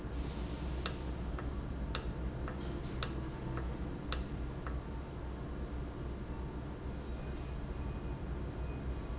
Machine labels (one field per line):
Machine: valve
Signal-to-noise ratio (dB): -6 dB